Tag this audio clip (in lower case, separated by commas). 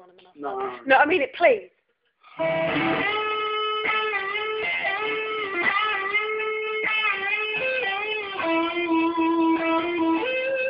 speech, plucked string instrument, strum, musical instrument, guitar, music